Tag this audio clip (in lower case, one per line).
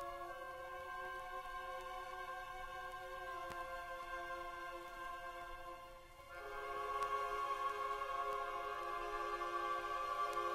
music